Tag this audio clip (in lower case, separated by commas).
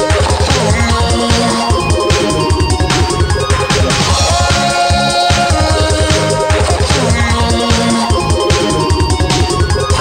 music